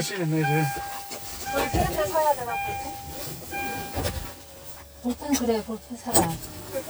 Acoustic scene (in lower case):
car